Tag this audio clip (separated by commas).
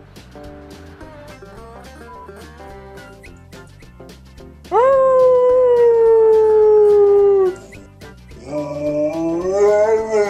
dog howling